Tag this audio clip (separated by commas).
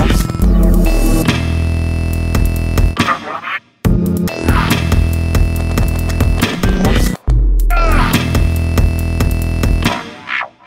Music